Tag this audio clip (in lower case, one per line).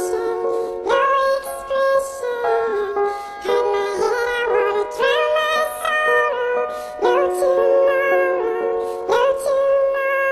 music